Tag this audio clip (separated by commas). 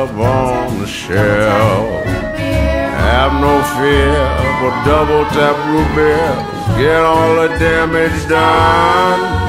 Music